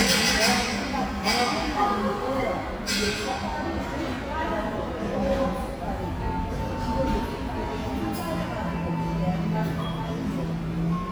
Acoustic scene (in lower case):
cafe